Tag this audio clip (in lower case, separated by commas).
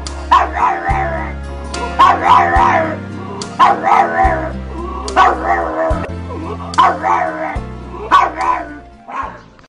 yip, bow-wow, music, animal, domestic animals, whimper (dog), dog